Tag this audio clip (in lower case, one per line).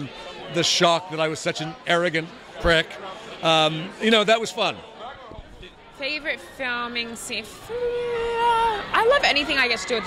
speech